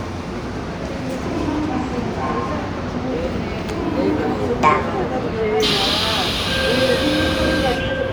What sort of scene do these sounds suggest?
subway train